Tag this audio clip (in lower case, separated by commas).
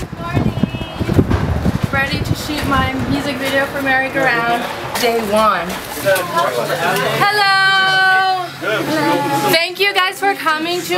speech